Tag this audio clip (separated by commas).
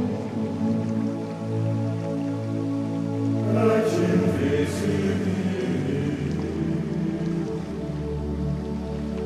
Mantra, Music